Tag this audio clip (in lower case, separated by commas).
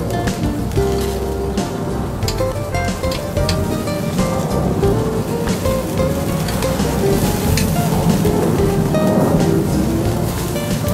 music